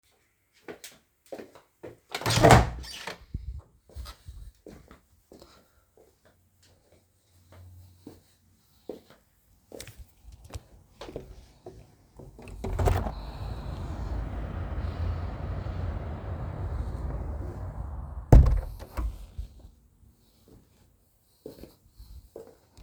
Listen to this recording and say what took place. I walked to the room door and opened it, then walked to the window and opened it. After taking fresh air I closed the window and started walking away from the window.